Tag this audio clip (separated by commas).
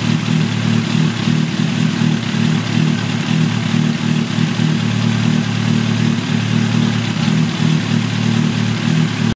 revving, Vehicle